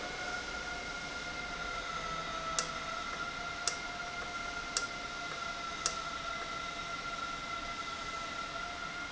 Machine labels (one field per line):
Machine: valve